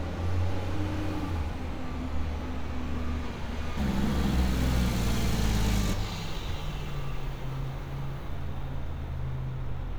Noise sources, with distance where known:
large-sounding engine, near

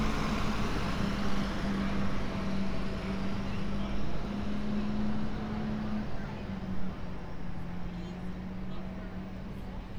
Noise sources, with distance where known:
large-sounding engine, near

